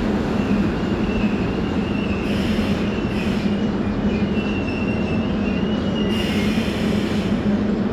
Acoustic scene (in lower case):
subway station